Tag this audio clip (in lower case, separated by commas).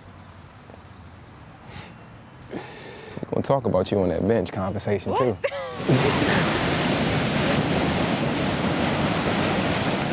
ocean, waves, wind